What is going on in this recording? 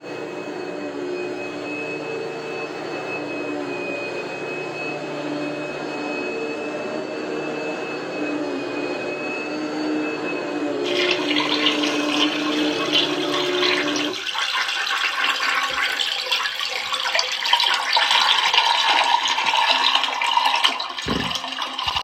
I turned on the vacuum cleaner and then flushed the toilet. The sound of the vacuum cleaner running and the toilet flushing were captured in the recording without any background noise.